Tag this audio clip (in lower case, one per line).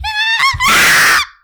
screaming
human voice